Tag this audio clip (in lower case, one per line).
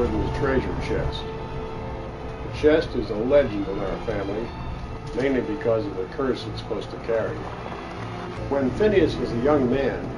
music
speech